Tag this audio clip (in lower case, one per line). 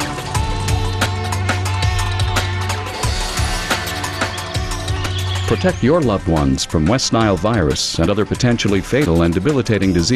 speech
music